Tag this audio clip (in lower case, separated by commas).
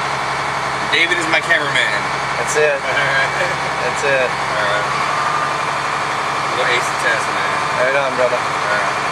speech